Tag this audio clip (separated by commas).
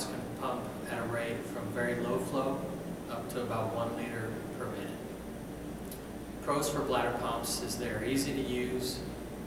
Speech